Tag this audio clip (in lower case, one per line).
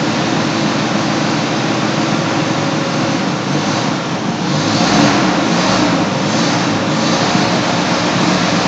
engine